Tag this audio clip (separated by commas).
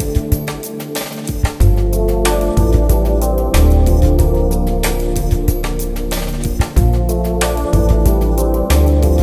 Music